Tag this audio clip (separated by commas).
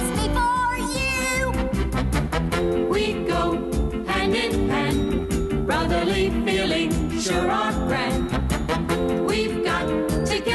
Music